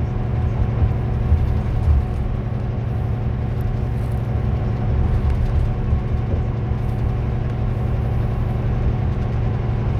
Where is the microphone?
in a car